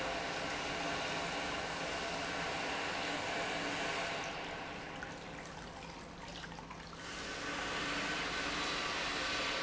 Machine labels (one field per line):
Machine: pump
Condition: normal